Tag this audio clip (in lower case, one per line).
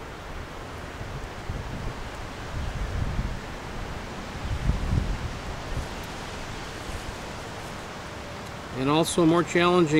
surf